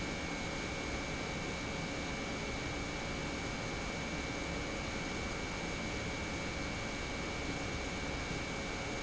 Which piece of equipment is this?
pump